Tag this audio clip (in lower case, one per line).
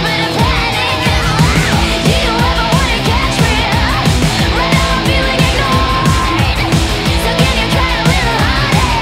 electric guitar
musical instrument
plucked string instrument
strum
guitar
music